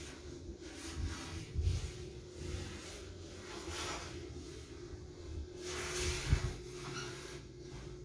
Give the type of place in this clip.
elevator